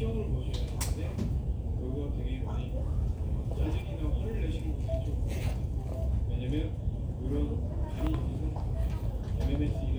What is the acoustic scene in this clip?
crowded indoor space